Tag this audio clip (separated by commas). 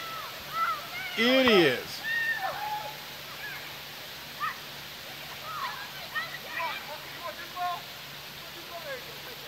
Rain on surface, Speech